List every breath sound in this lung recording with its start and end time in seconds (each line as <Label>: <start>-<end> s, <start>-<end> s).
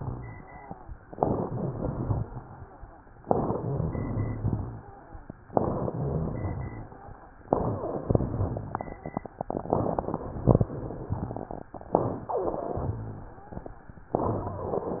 Inhalation: 1.10-2.24 s, 3.25-4.63 s, 5.54-6.93 s
Crackles: 1.10-2.24 s, 3.25-4.63 s, 5.54-6.93 s